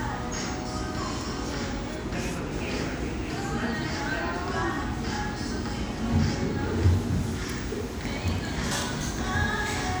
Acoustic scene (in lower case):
cafe